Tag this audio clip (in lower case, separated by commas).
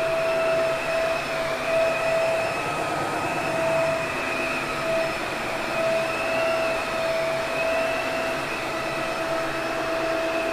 vacuum cleaner cleaning floors